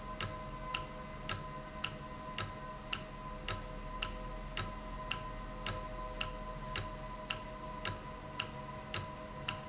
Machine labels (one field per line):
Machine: valve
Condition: normal